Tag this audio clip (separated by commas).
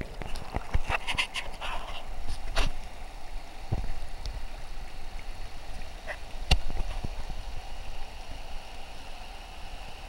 Stream